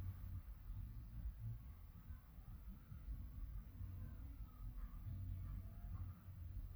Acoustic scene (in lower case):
residential area